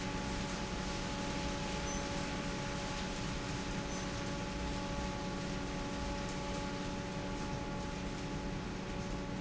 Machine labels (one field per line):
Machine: fan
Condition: normal